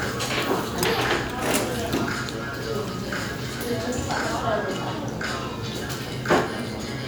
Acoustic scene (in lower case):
restaurant